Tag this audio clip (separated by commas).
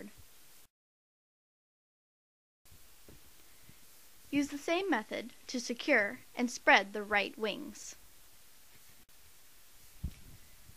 Speech